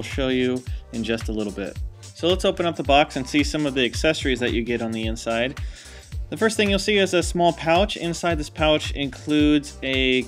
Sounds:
Music, Speech

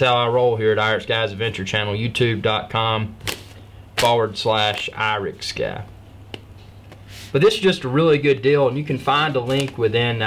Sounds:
Speech, inside a small room

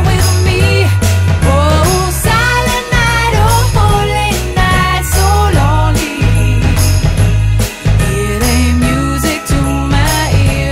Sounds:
Music, Jingle (music), Jingle bell

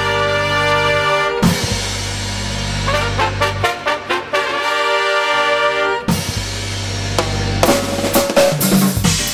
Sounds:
Snare drum, Rimshot, Bass drum, Drum, Percussion, Drum kit

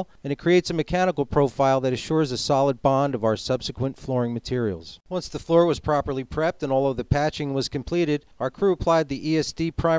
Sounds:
Speech

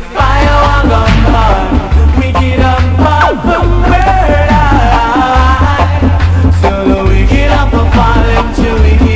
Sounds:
Music

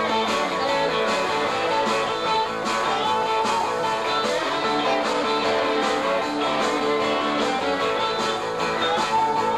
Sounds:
Plucked string instrument, Music, Musical instrument, Guitar, Strum, Electric guitar

